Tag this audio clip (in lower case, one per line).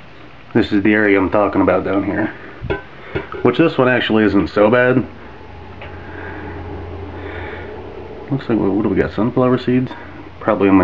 speech
inside a small room